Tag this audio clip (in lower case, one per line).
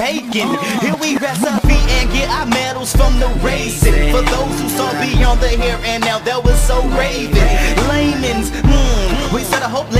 music